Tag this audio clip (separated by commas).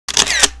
Camera, Mechanisms